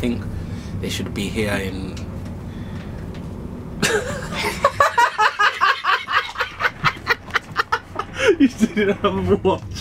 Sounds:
Speech

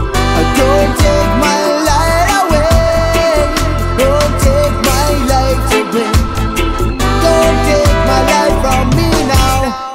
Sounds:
Music

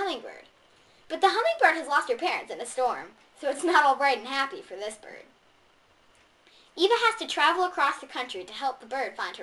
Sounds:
Speech

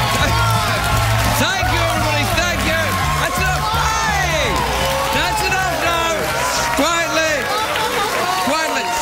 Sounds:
Narration, Speech, Music

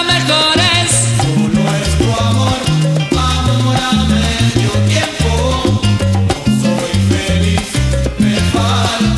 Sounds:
Music, Salsa music

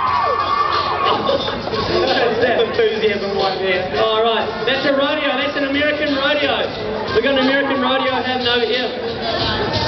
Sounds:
Music, Speech

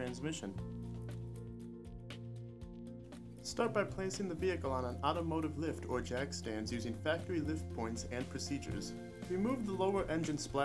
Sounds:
Speech, Music

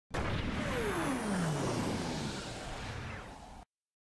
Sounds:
Sound effect

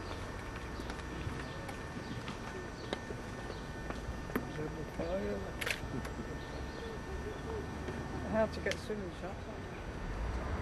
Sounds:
Speech

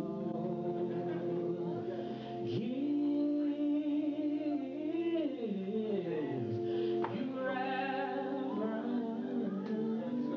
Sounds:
Music, Male singing

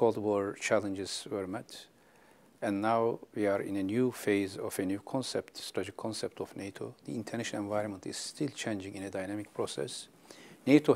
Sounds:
Speech

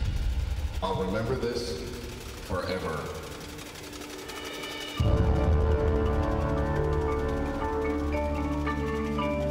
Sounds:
Music, Speech, Percussion

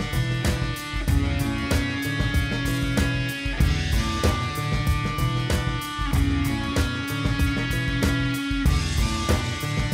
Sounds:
Music

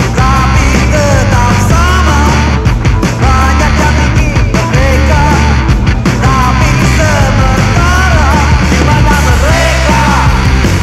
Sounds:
Music, Rhythm and blues

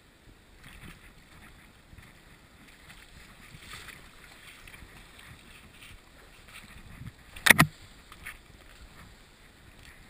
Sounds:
Stream

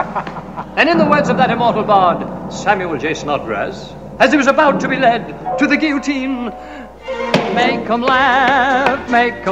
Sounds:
Music, Speech

